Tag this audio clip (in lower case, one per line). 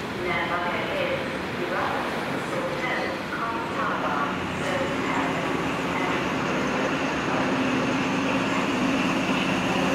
train
rail transport
train wagon
metro